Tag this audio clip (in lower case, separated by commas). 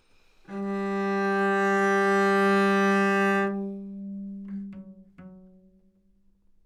musical instrument, music, bowed string instrument